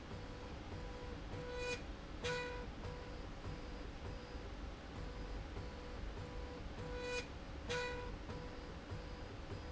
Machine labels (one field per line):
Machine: slide rail